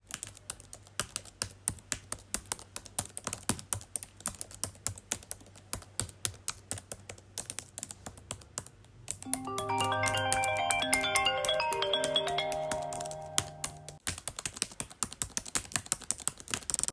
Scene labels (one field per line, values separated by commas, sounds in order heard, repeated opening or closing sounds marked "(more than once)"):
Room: office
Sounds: keyboard typing, phone ringing